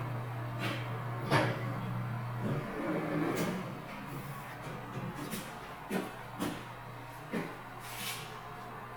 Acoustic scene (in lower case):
elevator